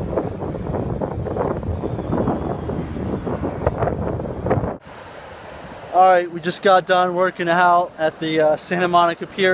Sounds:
speech, outside, urban or man-made, ocean

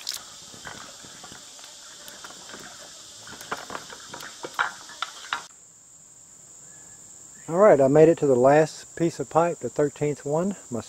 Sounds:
water, speech

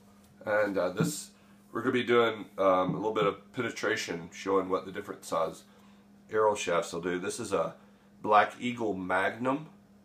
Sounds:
speech

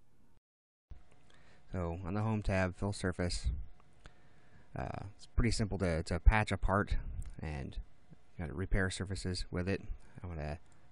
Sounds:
speech

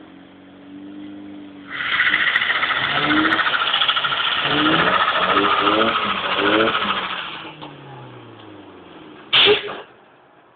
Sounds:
outside, urban or man-made, truck, auto racing, vehicle

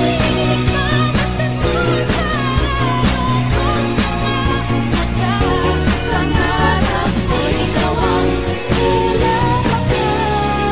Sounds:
music

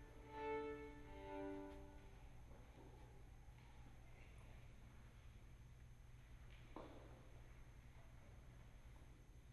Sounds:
fiddle, musical instrument, music

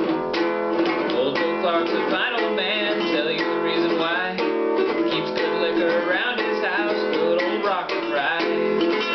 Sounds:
male singing, music

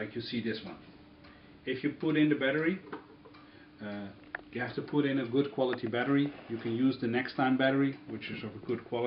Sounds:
speech

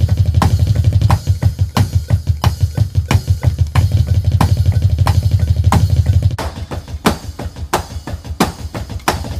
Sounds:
playing bass drum

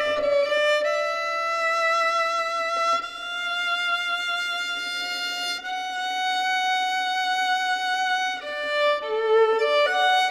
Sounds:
musical instrument, violin, bowed string instrument, music

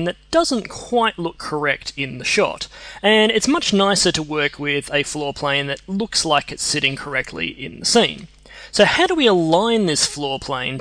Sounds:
speech

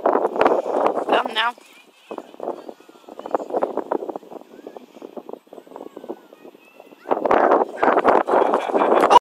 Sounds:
speech

